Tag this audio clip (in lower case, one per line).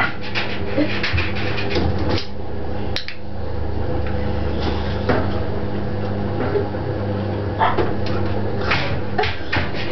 bow-wow
dog
domestic animals